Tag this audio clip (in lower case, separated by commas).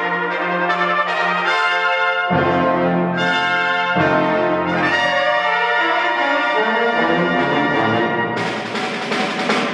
playing trumpet, trumpet, brass instrument